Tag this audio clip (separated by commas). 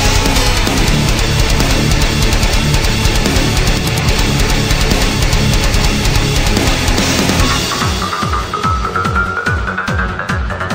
Music